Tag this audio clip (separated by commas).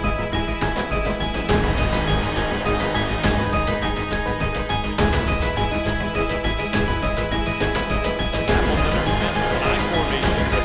Speech, Sound effect, Music